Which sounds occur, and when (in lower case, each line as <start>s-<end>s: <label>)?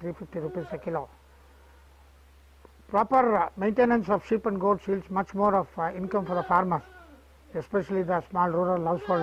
0.0s-1.1s: male speech
0.0s-9.2s: mechanisms
0.3s-0.8s: bleat
1.0s-2.2s: bleat
2.6s-2.7s: tick
2.9s-6.8s: male speech
5.8s-7.5s: bleat
7.5s-9.2s: male speech
8.7s-8.8s: tick
8.8s-9.2s: bleat